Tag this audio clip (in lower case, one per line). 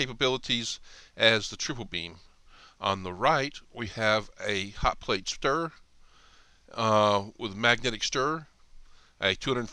speech